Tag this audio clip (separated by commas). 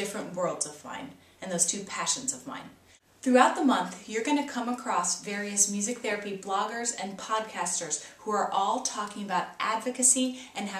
Speech